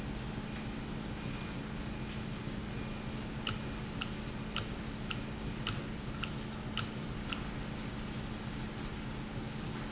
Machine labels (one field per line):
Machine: valve